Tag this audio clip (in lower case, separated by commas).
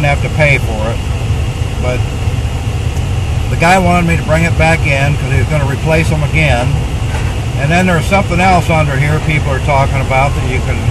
speech, vehicle